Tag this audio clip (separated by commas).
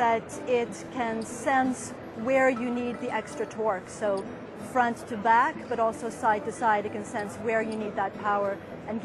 Speech, Music